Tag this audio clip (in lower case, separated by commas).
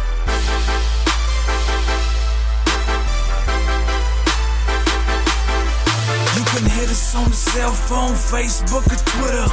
music